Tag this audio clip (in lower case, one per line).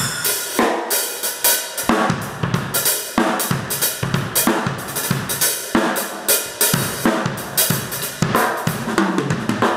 rimshot
cymbal
drum
snare drum
percussion
hi-hat
drum kit
bass drum